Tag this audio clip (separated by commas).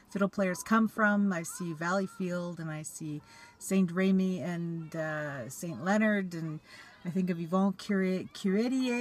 Speech